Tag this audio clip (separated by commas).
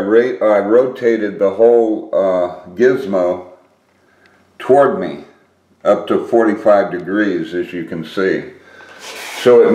Speech